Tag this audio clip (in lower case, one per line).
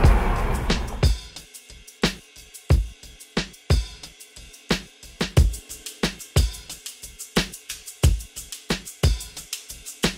music
car